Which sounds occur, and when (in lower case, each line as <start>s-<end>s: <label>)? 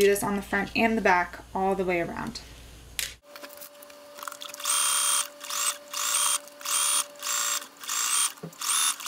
0.0s-1.4s: female speech
0.0s-3.2s: background noise
1.5s-2.4s: female speech
3.0s-3.1s: generic impact sounds
3.2s-9.0s: mechanisms
3.3s-3.5s: generic impact sounds
3.5s-3.9s: surface contact
4.1s-4.5s: tick
4.5s-5.2s: sewing machine
5.4s-5.7s: sewing machine
5.9s-6.4s: sewing machine
6.5s-7.0s: sewing machine
7.1s-7.6s: sewing machine
7.8s-8.3s: sewing machine
8.4s-8.5s: generic impact sounds
8.5s-8.9s: sewing machine
9.0s-9.0s: sewing machine